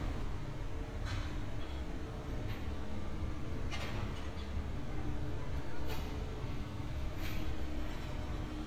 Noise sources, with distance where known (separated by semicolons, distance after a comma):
unidentified impact machinery